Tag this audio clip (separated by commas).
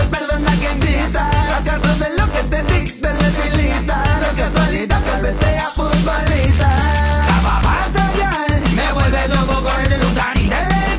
Reggae, Music